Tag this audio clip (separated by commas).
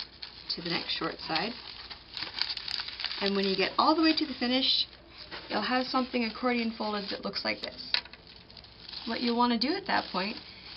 Speech